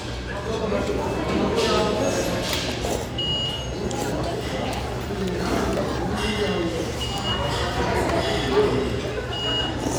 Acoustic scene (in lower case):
restaurant